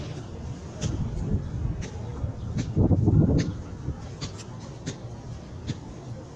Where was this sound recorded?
in a park